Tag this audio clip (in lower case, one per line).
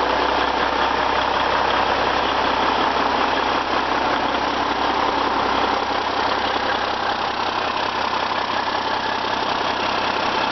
engine